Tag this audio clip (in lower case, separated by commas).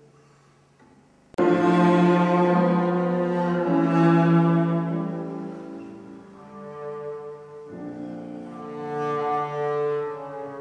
double bass, music